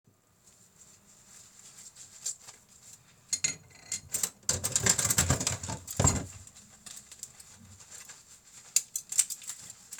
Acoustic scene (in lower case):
kitchen